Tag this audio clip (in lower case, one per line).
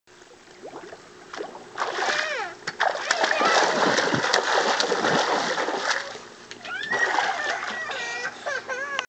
speech